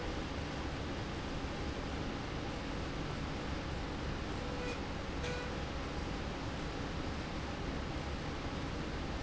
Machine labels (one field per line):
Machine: slide rail